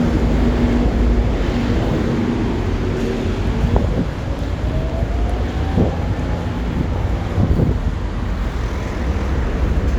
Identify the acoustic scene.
street